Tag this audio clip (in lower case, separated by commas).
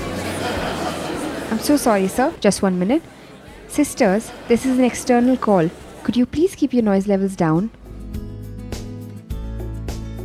music, speech